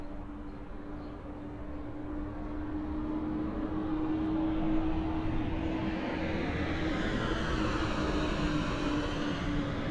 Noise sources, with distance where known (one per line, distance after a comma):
engine of unclear size